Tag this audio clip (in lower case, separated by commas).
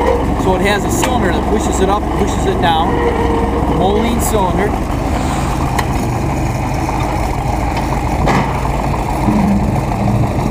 vehicle